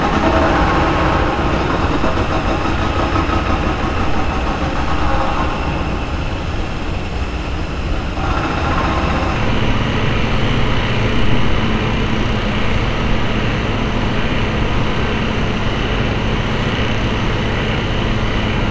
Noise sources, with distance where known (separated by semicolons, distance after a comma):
unidentified impact machinery